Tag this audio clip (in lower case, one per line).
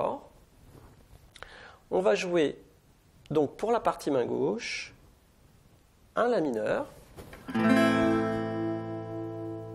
speech